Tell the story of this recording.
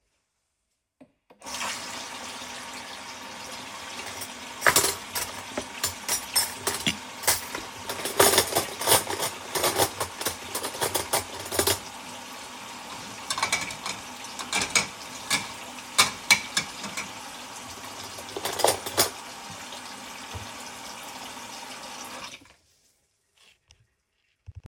I place the recording device next to the kitchen sink. I turn on the water and move cutlery and dishes while the water is running. After a few seconds, I stop moving the dishes and turn the water off.